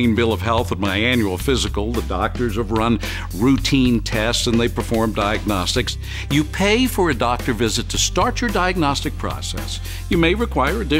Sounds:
music
speech

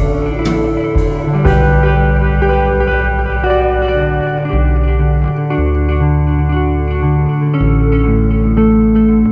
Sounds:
music

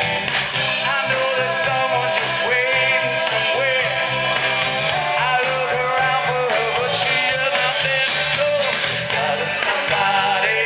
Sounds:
male singing
music

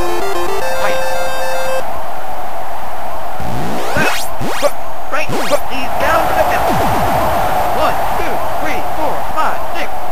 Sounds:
speech

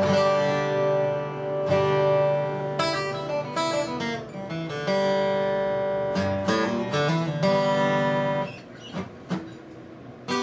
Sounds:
plucked string instrument
musical instrument
strum
acoustic guitar
music
guitar

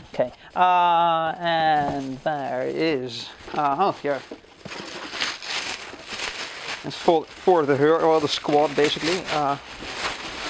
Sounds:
speech

